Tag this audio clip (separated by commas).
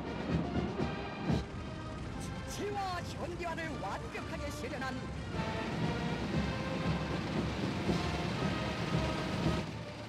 people marching